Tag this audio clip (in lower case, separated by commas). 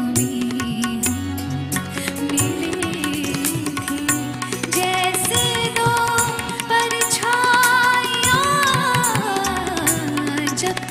music of bollywood, music, singing